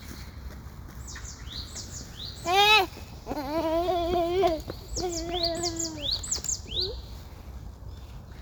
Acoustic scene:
park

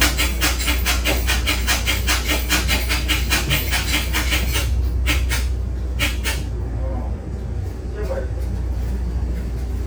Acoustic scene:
bus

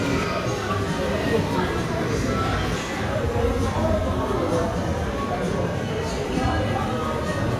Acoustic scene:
crowded indoor space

